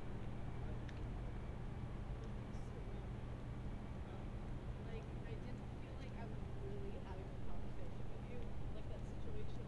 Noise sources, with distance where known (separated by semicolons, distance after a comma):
person or small group talking, far